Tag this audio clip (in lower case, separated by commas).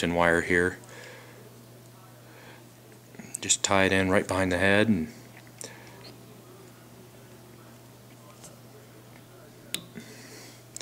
speech